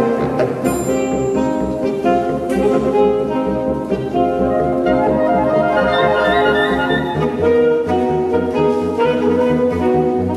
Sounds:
Music, Percussion

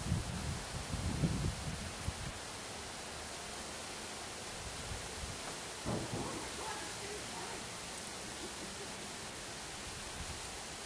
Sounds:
Rustle

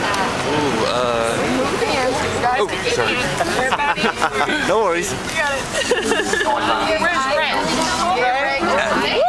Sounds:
Speech

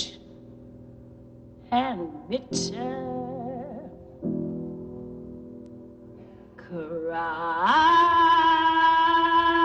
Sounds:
Music, inside a small room

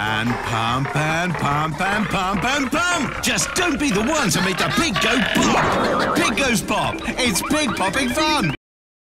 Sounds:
Music, Speech

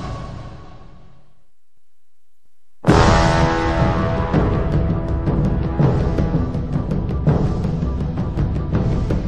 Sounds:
Music

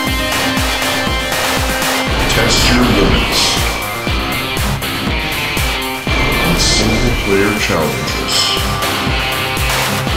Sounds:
Speech, Music

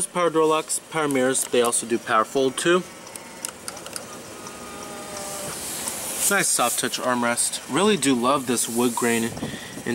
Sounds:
Speech

